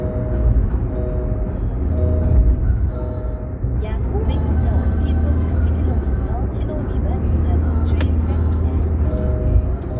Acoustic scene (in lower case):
car